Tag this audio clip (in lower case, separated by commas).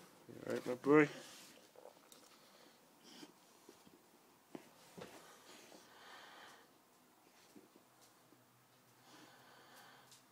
speech